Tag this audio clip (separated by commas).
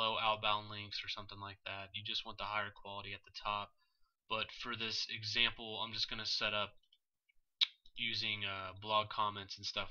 Speech